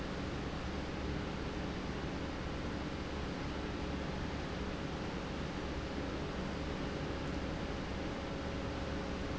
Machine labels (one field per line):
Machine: pump